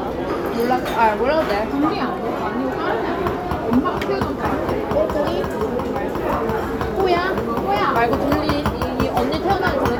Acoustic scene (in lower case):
restaurant